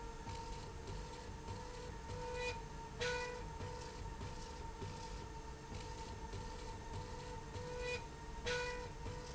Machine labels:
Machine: slide rail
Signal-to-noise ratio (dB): 6 dB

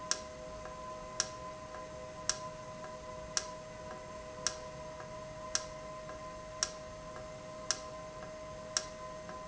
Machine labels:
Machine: valve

